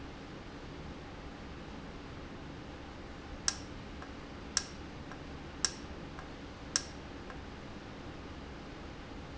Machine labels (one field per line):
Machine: valve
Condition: normal